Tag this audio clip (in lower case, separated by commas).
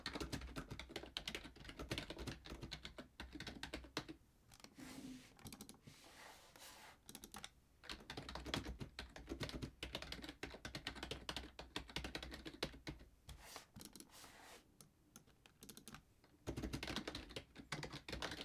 computer keyboard, home sounds, typing